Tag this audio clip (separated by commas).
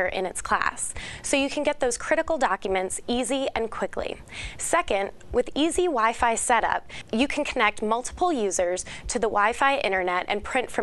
Speech